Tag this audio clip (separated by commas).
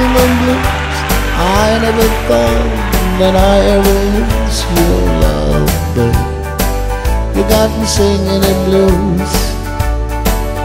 Music, Blues, Male singing